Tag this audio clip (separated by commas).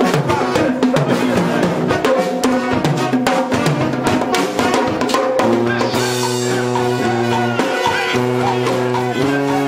Music, Musical instrument, inside a large room or hall, Orchestra, Brass instrument